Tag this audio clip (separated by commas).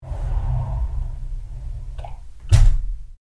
home sounds, Door, Slam, Sliding door